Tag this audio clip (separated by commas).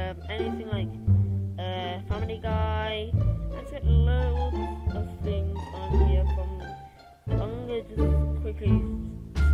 Speech, Music